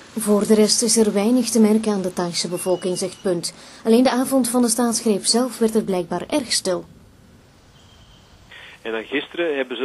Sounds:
Speech, Vehicle

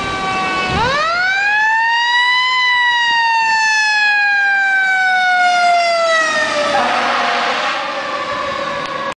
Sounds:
Engine, Heavy engine (low frequency), Vehicle

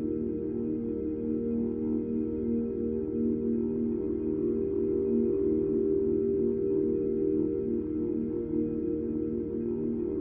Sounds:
Music

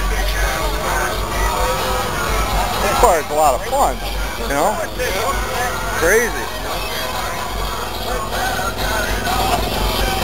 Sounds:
Speech, Music

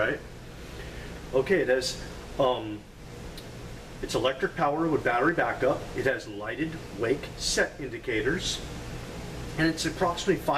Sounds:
Speech

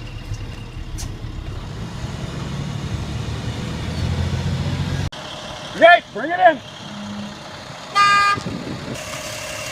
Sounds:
Truck, Motor vehicle (road), Vehicle, Speech

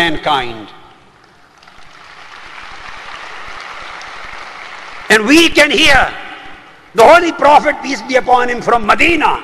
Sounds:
Male speech, Speech, Narration

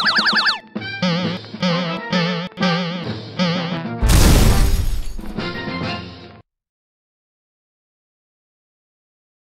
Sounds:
Music

